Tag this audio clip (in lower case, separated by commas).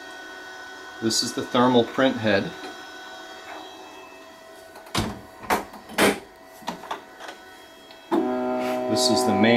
speech, printer